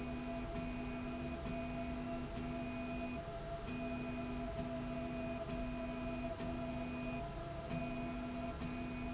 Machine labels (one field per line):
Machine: slide rail